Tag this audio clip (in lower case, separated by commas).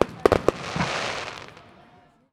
explosion, fireworks